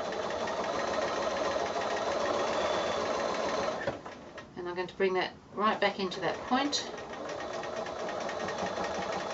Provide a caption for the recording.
A sewing machine works then a woman speaks